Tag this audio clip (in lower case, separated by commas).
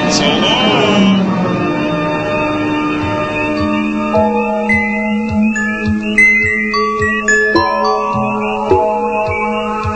speech, music